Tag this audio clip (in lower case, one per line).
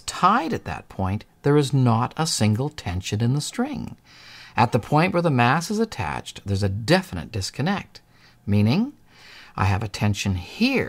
speech